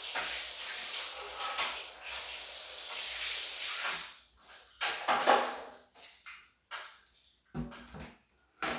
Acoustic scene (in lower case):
restroom